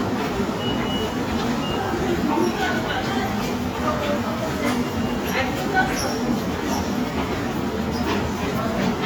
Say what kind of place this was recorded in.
subway station